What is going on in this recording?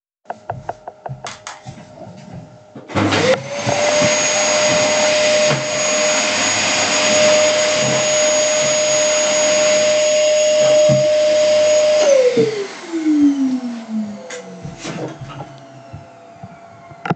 I walk to the Vacuum_cleaner to turn it on. Then I started to vaccum the room.